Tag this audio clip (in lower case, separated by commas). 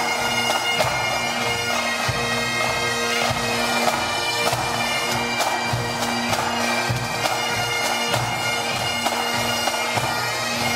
playing bagpipes